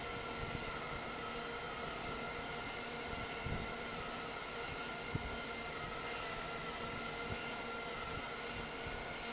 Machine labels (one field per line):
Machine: fan